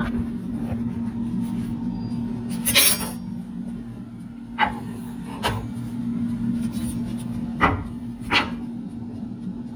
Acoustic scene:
kitchen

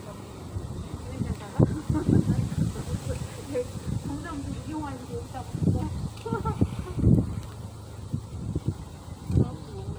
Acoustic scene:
residential area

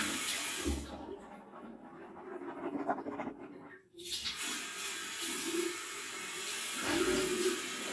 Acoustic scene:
restroom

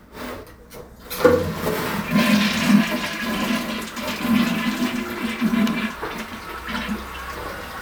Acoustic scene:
restroom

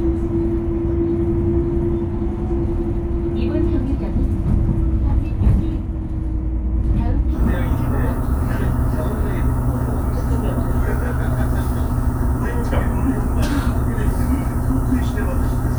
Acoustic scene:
bus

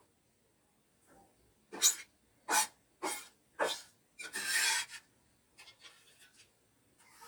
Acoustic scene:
kitchen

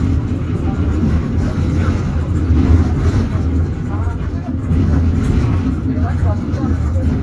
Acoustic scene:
bus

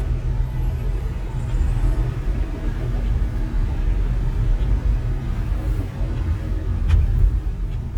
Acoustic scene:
car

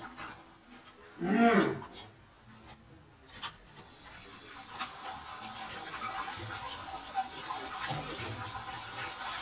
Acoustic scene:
kitchen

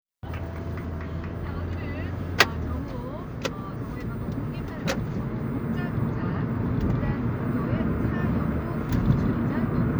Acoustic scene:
car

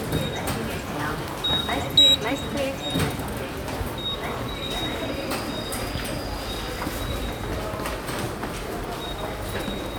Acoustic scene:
subway station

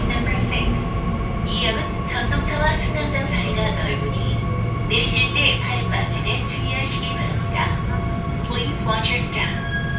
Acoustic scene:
subway train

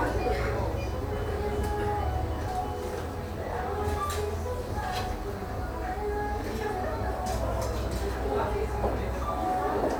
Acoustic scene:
cafe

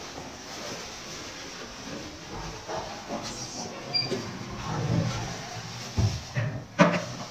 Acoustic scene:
elevator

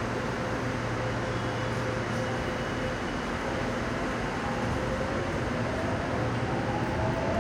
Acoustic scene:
subway station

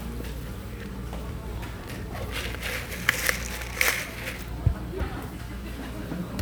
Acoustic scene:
cafe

